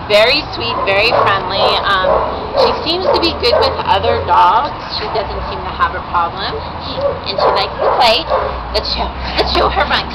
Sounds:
Bow-wow, Dog, Domestic animals, Animal

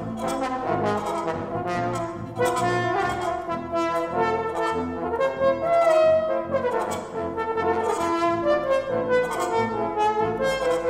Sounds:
Musical instrument, Trombone, Brass instrument, playing trombone, Music

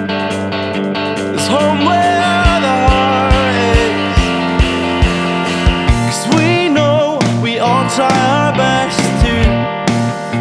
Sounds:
Music, Funk

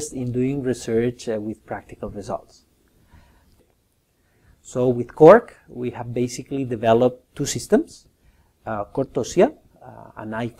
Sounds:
Speech

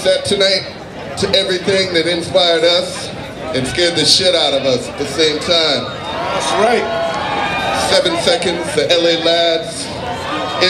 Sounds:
Speech

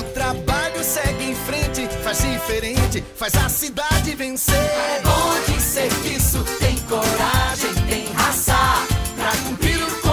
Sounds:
Jingle (music), Music

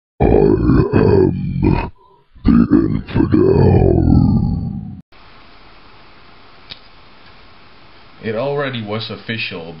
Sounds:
inside a small room, Speech

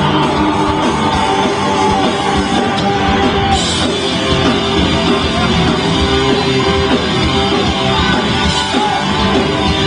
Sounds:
Music, Rock music, Crowd

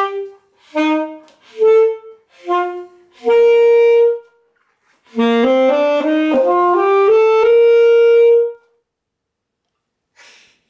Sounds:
Music, Tender music

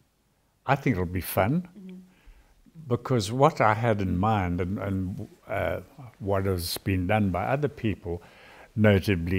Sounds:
Speech

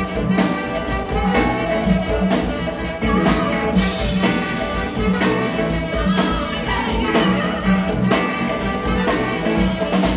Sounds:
Snare drum, Bass drum, Drum kit, Percussion, Rimshot, Drum

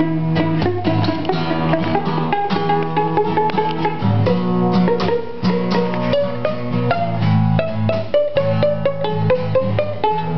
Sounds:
Plucked string instrument, Pizzicato, Music, Musical instrument, Guitar, Acoustic guitar

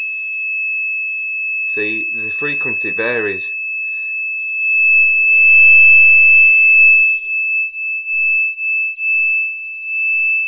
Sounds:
Speech

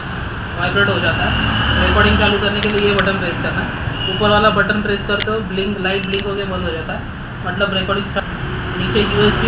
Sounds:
Speech

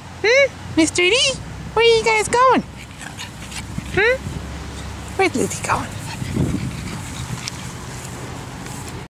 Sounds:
Speech

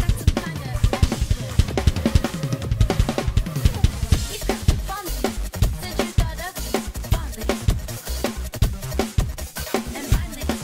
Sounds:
Music, Drum kit, Drum, Bass drum, Musical instrument

